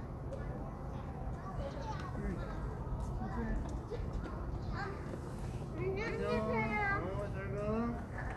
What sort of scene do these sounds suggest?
residential area